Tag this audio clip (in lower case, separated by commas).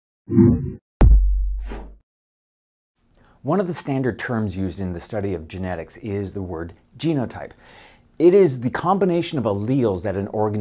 speech, inside a small room